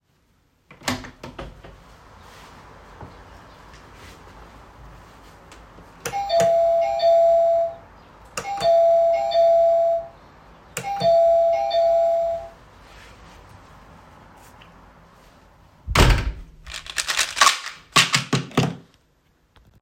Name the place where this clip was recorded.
hallway